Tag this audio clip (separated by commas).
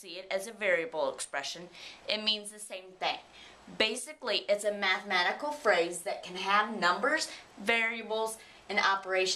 Speech